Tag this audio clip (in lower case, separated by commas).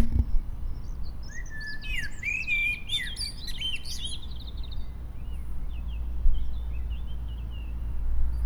bird call, animal, wild animals, bird